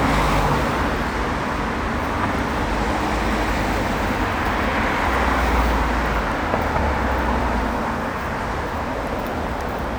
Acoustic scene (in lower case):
street